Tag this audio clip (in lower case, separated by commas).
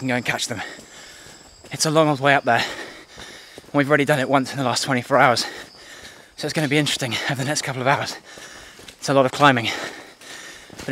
outside, rural or natural, speech